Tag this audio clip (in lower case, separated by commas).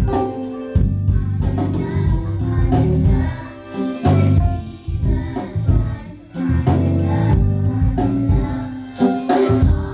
music, choir